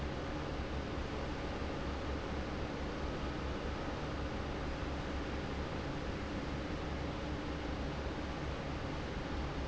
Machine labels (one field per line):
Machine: fan